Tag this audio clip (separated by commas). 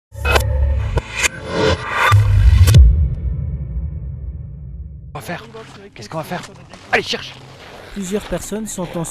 Speech, Music